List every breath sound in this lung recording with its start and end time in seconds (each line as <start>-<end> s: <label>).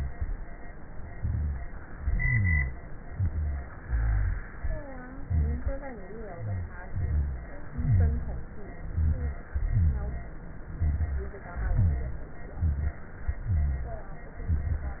1.10-1.65 s: inhalation
1.10-1.65 s: rhonchi
1.99-2.77 s: exhalation
1.99-2.77 s: rhonchi
3.11-3.66 s: inhalation
3.11-3.66 s: rhonchi
3.81-4.46 s: exhalation
3.81-4.46 s: rhonchi
5.20-5.75 s: inhalation
5.20-5.75 s: rhonchi
6.26-6.76 s: exhalation
6.26-6.76 s: rhonchi
6.91-7.51 s: inhalation
6.91-7.51 s: rhonchi
7.78-8.48 s: exhalation
7.78-8.48 s: rhonchi
8.92-9.43 s: inhalation
8.92-9.43 s: rhonchi
9.56-10.34 s: exhalation
9.56-10.34 s: rhonchi
10.78-11.39 s: inhalation
10.78-11.39 s: rhonchi
11.55-12.33 s: exhalation
11.55-12.33 s: rhonchi
12.60-13.00 s: inhalation
12.60-13.00 s: rhonchi
13.43-14.12 s: exhalation
13.43-14.12 s: rhonchi
14.48-15.00 s: inhalation
14.48-15.00 s: rhonchi